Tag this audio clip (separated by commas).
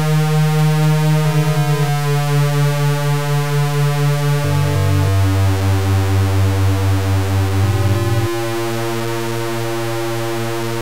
Music